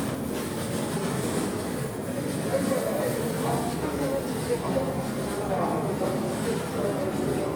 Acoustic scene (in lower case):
subway station